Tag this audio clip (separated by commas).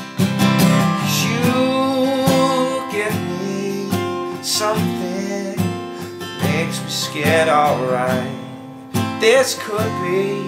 Music, Plucked string instrument, Guitar, Musical instrument